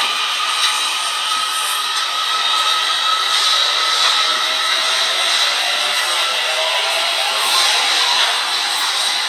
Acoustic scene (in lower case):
subway station